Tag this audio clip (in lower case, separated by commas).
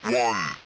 speech, human voice, speech synthesizer